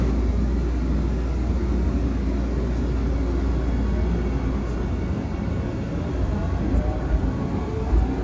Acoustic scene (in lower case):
subway train